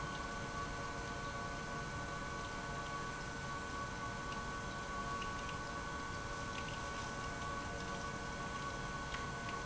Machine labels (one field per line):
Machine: pump